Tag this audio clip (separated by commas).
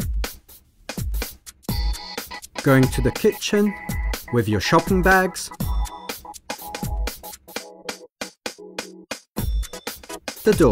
Speech, Music